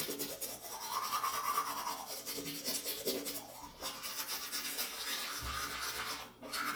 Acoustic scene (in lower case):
restroom